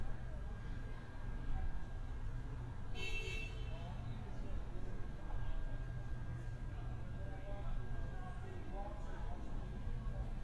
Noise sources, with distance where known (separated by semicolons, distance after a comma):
unidentified alert signal, far